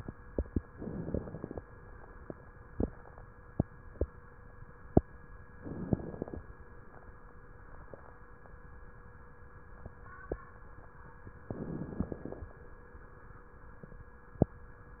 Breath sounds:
0.72-1.63 s: inhalation
0.72-1.63 s: crackles
5.52-6.43 s: inhalation
5.52-6.43 s: crackles
11.52-12.49 s: inhalation
11.52-12.49 s: crackles

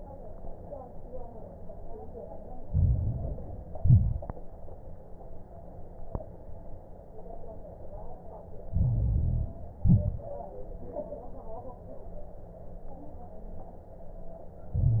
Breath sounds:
2.66-3.76 s: inhalation
2.66-3.76 s: crackles
3.78-4.36 s: exhalation
3.78-4.36 s: crackles
8.70-9.80 s: inhalation
8.70-9.80 s: crackles
9.80-10.38 s: exhalation
9.80-10.38 s: crackles
14.73-15.00 s: inhalation
14.73-15.00 s: crackles

